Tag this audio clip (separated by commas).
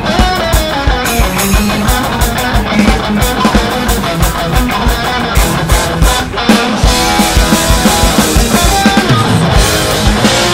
Musical instrument, Drum, Guitar, Music, Plucked string instrument, Bass drum, Strum, Acoustic guitar, Drum kit